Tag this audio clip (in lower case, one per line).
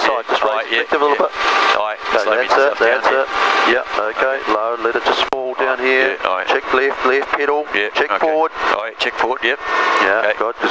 vehicle
speech